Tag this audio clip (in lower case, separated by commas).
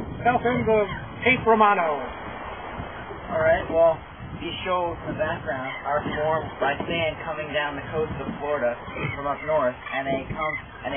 outside, rural or natural, speech